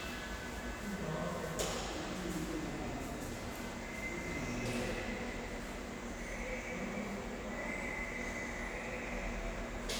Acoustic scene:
subway station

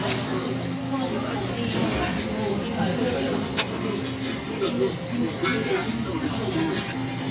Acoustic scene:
crowded indoor space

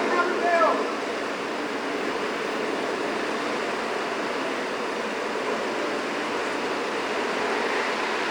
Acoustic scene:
street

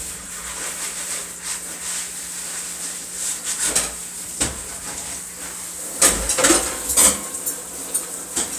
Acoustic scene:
kitchen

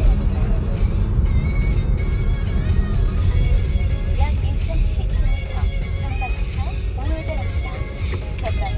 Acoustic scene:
car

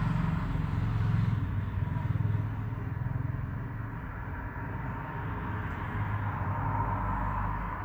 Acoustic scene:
street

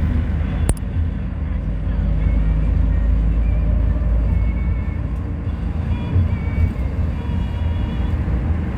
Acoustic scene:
bus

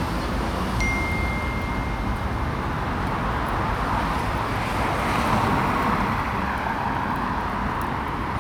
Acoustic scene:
street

